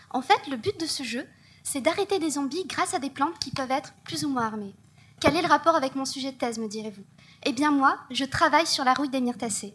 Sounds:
speech

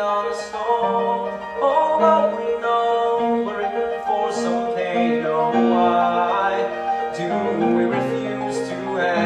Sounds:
music

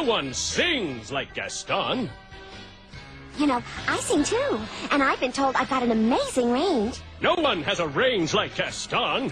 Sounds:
speech, music

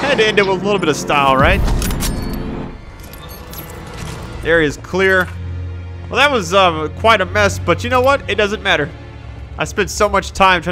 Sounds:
music, speech

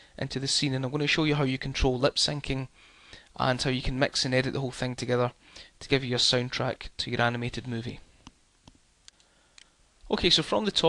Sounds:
speech

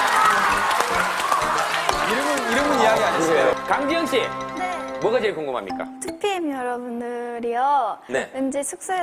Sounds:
music, speech

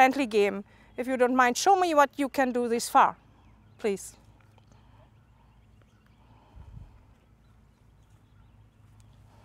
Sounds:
speech

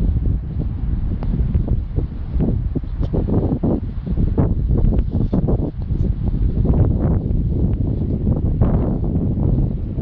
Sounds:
wind, wind noise, wind noise (microphone)

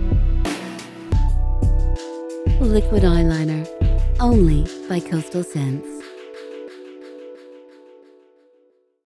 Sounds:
speech, music

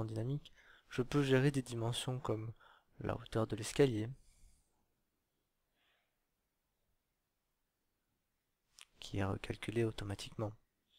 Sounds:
inside a small room, speech

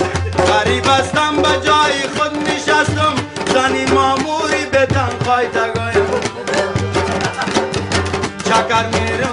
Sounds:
music

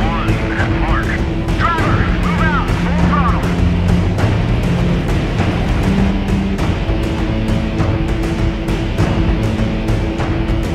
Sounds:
music, speech

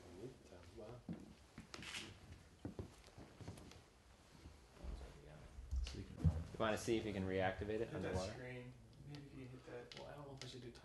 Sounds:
speech

